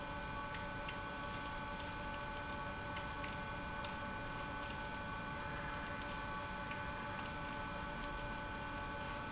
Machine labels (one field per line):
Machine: pump